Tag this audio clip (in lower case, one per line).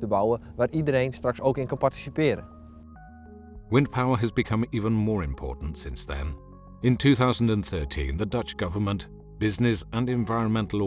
music
speech